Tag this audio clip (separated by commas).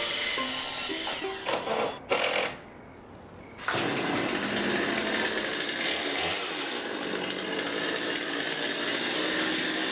Music, outside, urban or man-made